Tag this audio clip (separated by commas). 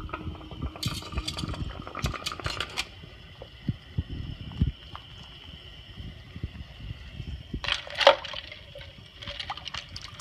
Water, Glass